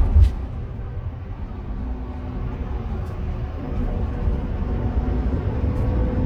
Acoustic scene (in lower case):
car